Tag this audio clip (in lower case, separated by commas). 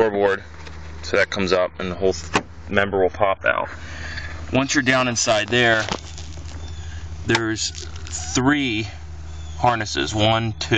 speech